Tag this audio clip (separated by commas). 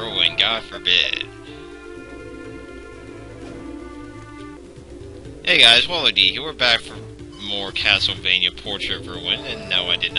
Music, Speech